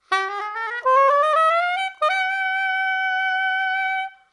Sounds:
music, woodwind instrument, musical instrument

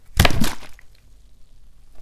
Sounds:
liquid, splash

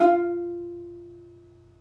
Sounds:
music, musical instrument, plucked string instrument

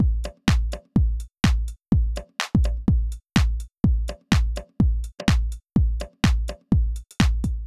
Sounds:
musical instrument, music, percussion, drum kit

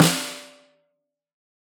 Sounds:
music, percussion, musical instrument, snare drum, drum

